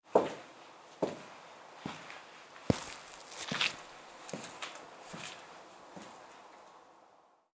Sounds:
footsteps

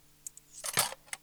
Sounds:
cutlery, home sounds

